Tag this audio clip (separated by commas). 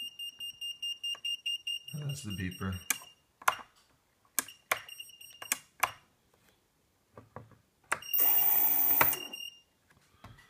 Speech